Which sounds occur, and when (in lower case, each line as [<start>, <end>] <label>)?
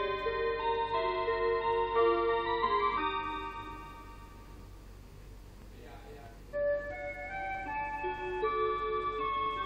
[0.00, 4.82] alarm clock
[0.00, 9.65] background noise
[5.51, 5.64] tap
[5.72, 6.37] male speech
[6.49, 9.65] alarm clock